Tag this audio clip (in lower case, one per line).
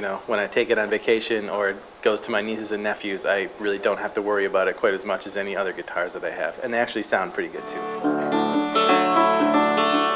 music
speech